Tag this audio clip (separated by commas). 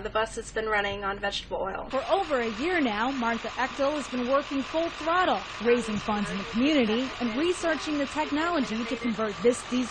Speech, Bus, Vehicle